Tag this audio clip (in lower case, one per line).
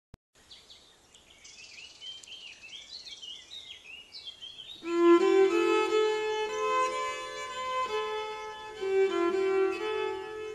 environmental noise
musical instrument
music
bird call